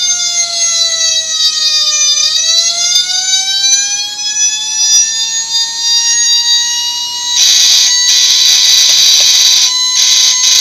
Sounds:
fire truck (siren), inside a small room, siren

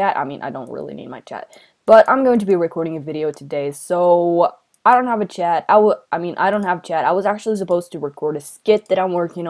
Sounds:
speech

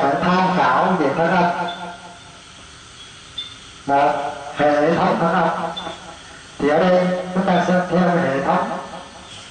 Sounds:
speech

